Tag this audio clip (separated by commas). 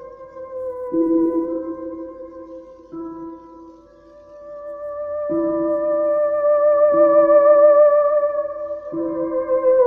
Theremin, Music